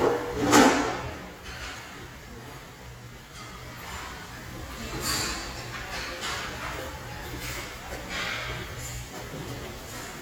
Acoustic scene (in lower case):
restaurant